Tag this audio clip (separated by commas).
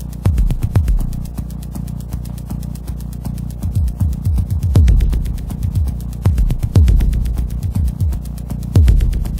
Music